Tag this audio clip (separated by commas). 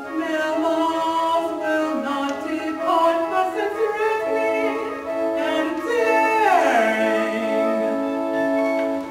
Music